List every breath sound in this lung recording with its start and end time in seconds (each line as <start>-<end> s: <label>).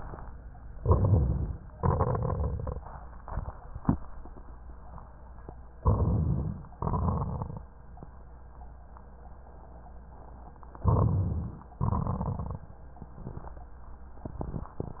0.76-1.62 s: inhalation
1.70-2.77 s: exhalation
1.70-2.77 s: crackles
5.82-6.71 s: inhalation
6.78-7.67 s: exhalation
6.78-7.67 s: crackles
10.82-11.71 s: inhalation
11.80-12.69 s: exhalation
11.80-12.69 s: crackles